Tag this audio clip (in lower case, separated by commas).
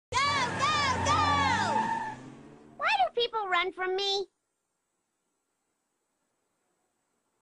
speech